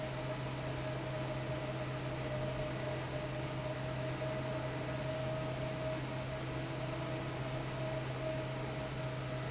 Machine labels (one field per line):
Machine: fan